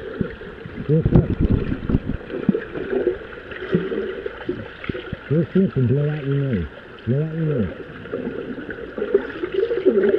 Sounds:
Speech, Stream

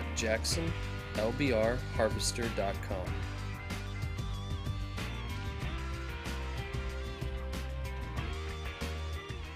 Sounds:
Speech, Music

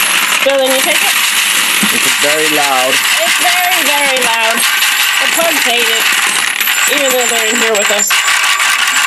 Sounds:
Speech, inside a small room

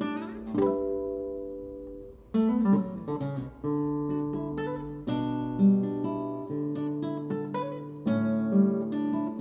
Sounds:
Plucked string instrument, Guitar, Musical instrument, Strum, Acoustic guitar, Music

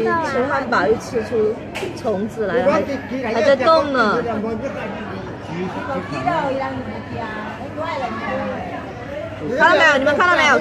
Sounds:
Speech

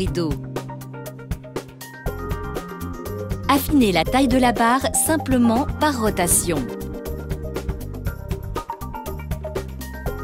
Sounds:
Music, Speech

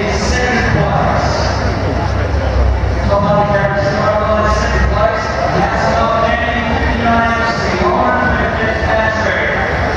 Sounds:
Speech

